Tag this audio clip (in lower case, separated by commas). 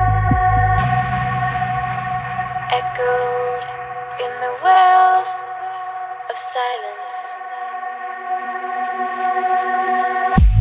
music